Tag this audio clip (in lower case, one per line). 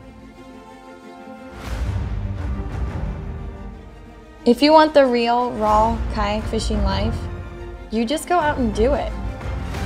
speech
music